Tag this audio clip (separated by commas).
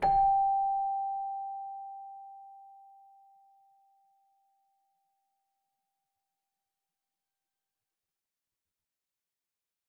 Music, Keyboard (musical), Musical instrument